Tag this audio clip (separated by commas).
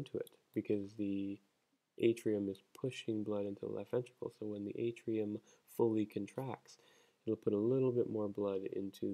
Speech